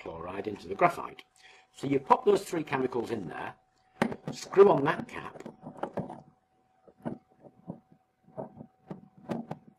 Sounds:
inside a small room
speech

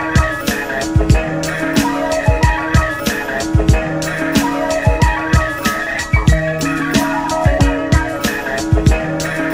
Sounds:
music

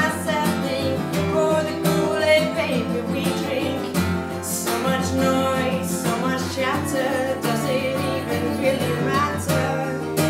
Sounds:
music

